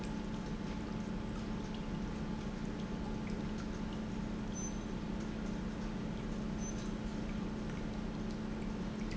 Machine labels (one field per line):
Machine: pump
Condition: normal